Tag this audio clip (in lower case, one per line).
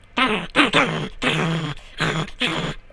growling
animal